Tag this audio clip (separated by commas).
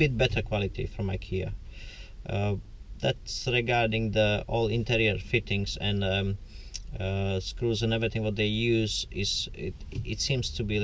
Speech